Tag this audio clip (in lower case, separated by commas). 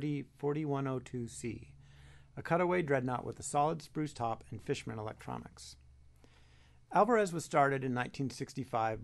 speech